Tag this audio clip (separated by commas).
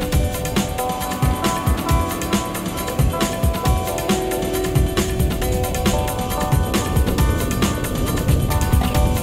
Music